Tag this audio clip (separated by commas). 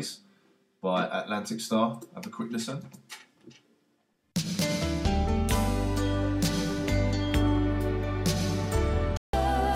Music, Speech